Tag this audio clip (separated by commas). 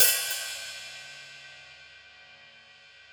Cymbal, Music, Hi-hat, Musical instrument, Percussion